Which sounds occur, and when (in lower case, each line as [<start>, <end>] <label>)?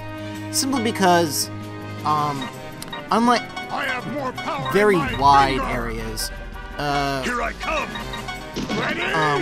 [0.00, 9.41] music
[0.00, 9.41] video game sound
[0.52, 1.44] man speaking
[1.98, 2.50] scrape
[2.02, 2.50] man speaking
[2.78, 2.85] tick
[3.06, 3.37] man speaking
[3.68, 6.31] man speaking
[6.77, 7.20] human voice
[7.21, 7.83] man speaking
[8.68, 9.41] man speaking
[9.12, 9.36] human voice